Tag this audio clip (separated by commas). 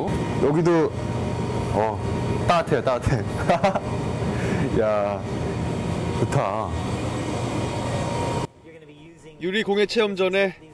Speech